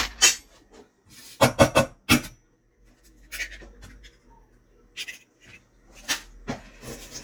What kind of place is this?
kitchen